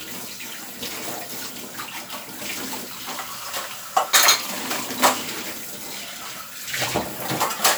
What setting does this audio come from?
kitchen